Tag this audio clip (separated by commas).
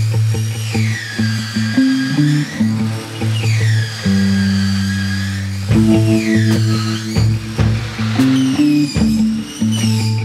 Music, Tools